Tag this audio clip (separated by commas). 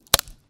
Crack